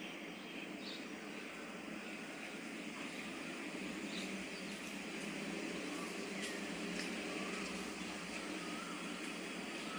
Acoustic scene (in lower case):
park